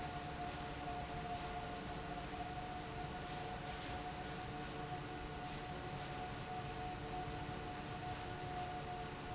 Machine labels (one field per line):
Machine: fan